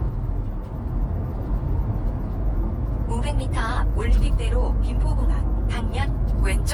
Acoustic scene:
car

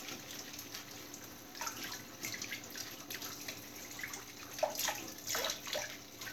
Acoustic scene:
kitchen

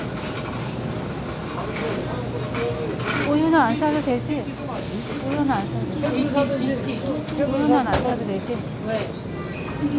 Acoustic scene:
crowded indoor space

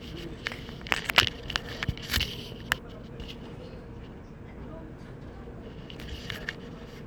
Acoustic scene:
crowded indoor space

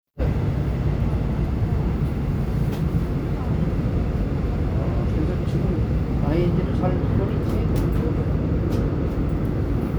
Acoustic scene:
subway train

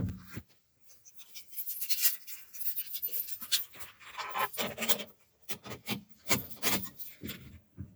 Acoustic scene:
car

